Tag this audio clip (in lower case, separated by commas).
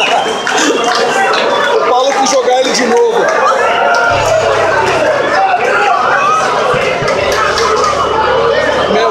speech, inside a large room or hall